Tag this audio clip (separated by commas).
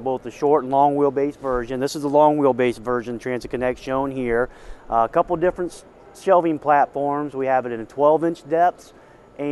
Speech